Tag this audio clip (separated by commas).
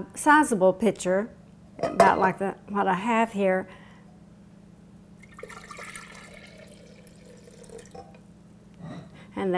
Liquid, Speech, inside a small room